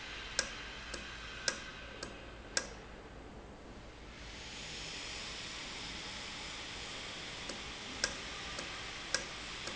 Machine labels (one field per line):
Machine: valve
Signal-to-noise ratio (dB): 0 dB